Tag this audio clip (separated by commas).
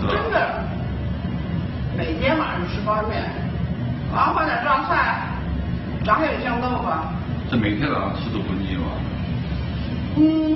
Male speech, Speech